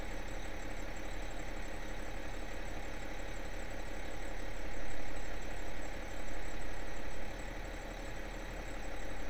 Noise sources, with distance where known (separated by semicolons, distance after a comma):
large-sounding engine